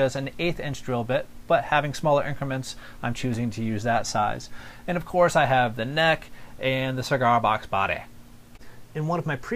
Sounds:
speech

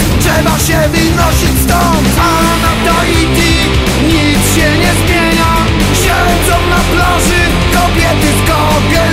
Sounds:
music, techno

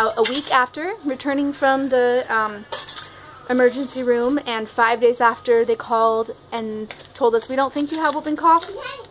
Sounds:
kid speaking, speech

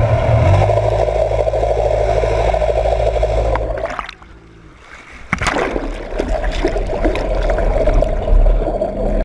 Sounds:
airscrew, vehicle

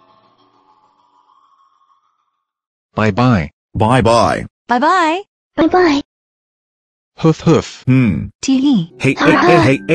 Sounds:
music, speech

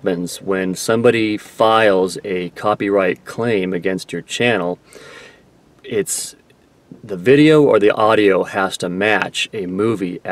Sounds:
speech, narration, male speech

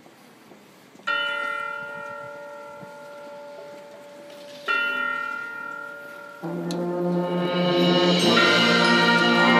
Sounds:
music, bell, church bell

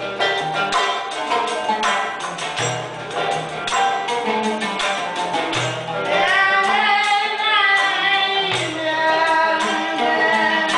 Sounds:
music, female singing

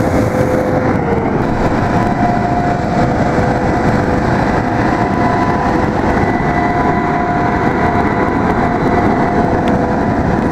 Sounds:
truck, vehicle

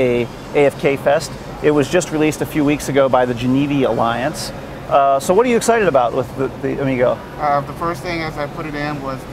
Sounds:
speech, vehicle

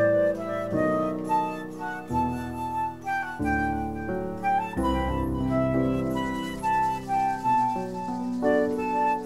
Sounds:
flute, woodwind instrument

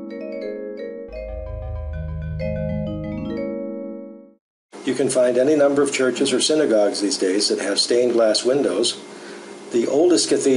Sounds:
music, inside a small room, speech

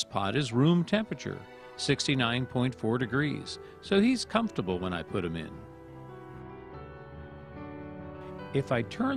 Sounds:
speech, music

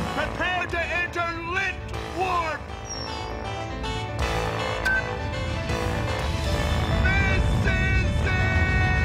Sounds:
speech, music

